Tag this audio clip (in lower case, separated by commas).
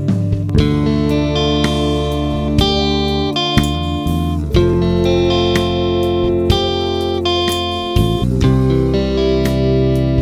percussion, guitar, drum kit, music, musical instrument, drum